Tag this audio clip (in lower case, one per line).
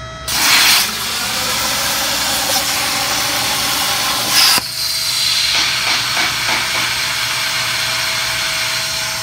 inside a large room or hall